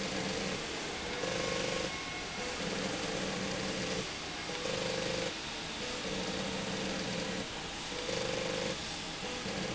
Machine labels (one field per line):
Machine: slide rail